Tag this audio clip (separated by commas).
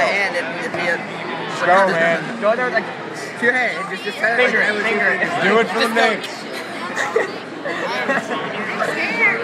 inside a public space, Speech